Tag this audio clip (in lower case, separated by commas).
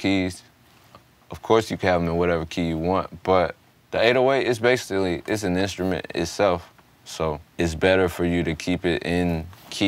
speech